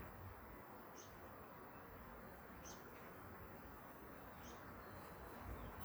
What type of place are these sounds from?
park